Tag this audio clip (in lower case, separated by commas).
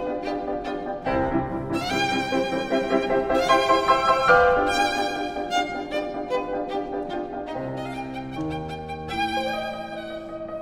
music, violin, musical instrument